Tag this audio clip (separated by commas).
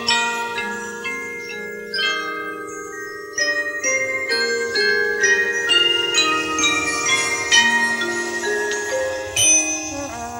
Mallet percussion, xylophone, Glockenspiel